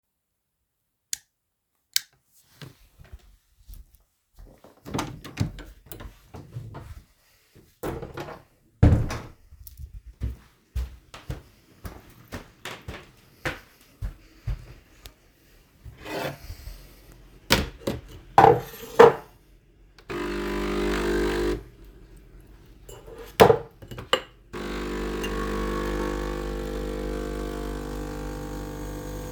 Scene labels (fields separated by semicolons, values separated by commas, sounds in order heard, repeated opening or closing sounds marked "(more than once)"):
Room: kitchen; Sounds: light switch, door, footsteps, cutlery and dishes, coffee machine